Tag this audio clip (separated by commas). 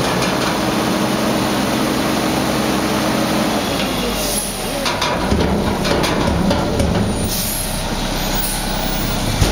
Truck, Vehicle